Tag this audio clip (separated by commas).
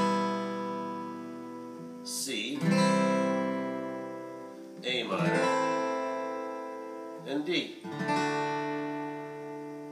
Guitar, Music, Plucked string instrument, Strum, Musical instrument